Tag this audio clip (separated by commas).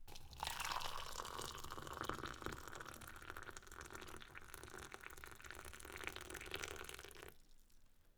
Liquid